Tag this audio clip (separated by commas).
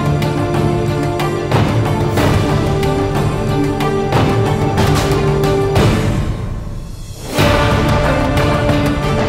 Music